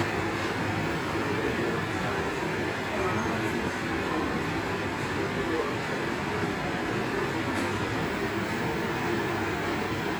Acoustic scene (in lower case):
subway station